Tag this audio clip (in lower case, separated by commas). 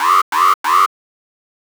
alarm